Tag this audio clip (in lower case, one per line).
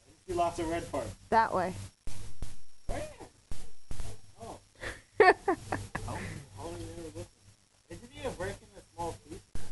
speech